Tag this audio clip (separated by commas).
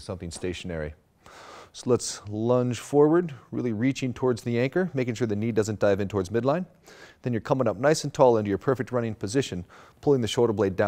Speech